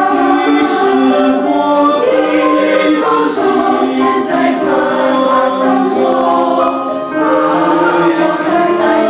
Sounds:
Singing, Choir, Music, Christian music

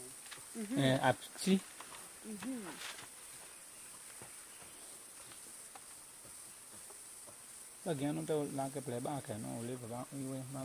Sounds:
Speech

